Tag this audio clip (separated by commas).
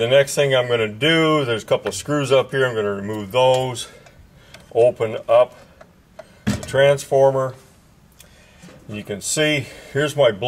Speech, inside a small room